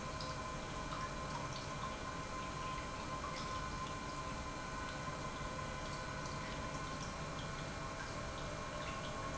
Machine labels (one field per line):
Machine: pump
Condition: normal